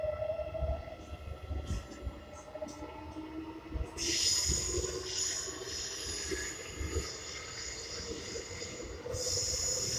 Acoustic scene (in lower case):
subway train